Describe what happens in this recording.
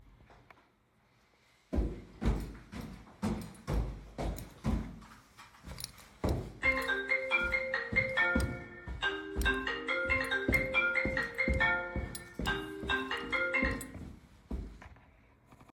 I rang the doorbell which produced a bell ringing sound. After the bell rang I walked through the hallway toward the door. The footsteps continued for several seconds before stopping.